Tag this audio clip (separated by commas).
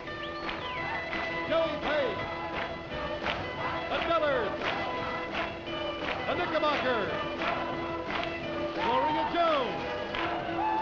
Speech, Music